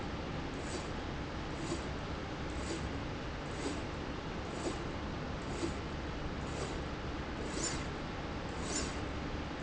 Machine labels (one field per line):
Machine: slide rail